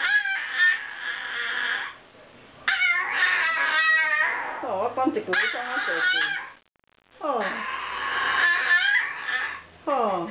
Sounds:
Whimper (dog), Yip, Speech, Animal, Dog, Domestic animals

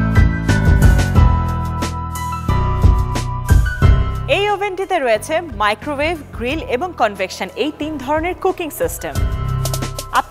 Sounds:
Speech, Music

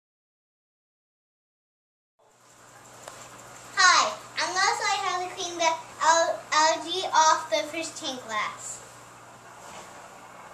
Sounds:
Speech

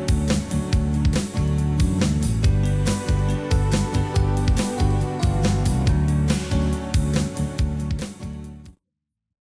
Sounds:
Music

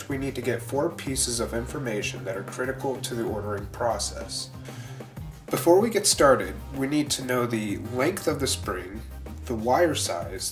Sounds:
Speech, Music

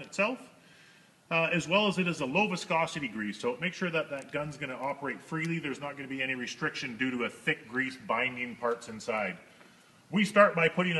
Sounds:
Speech

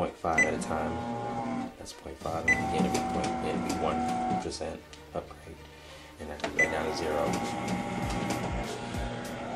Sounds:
inside a small room, Speech, Music

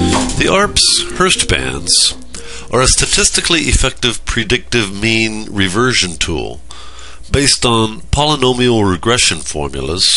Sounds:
Music, Speech

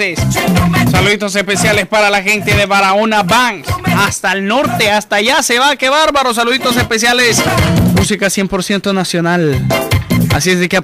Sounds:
Speech, Music

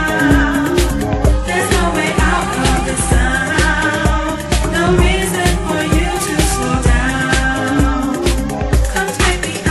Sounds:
Electronic music, Music

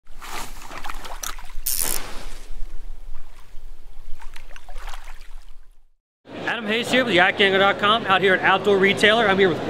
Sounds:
kayak, Speech

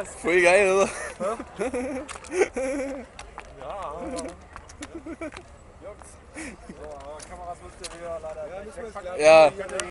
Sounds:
Speech

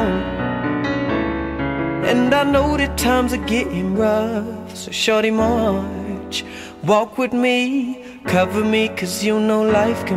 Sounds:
Music

